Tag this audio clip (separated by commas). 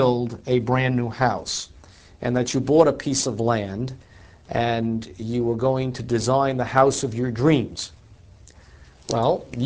Speech